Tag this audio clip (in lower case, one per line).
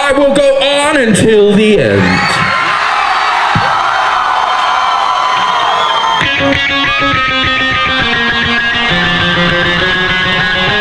speech
music